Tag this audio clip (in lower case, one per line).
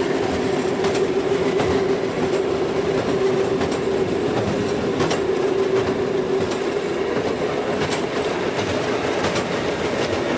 train
rail transport
railroad car
vehicle